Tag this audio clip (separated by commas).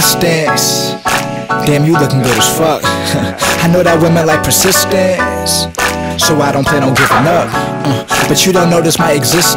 Soundtrack music, Music